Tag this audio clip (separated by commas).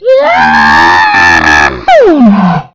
Human voice, Screaming